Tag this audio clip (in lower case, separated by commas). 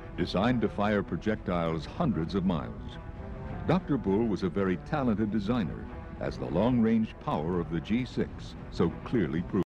music, speech